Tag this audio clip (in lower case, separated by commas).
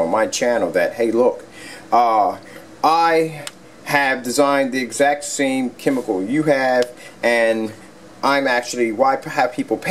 speech